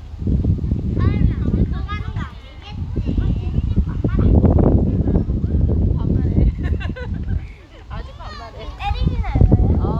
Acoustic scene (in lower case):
residential area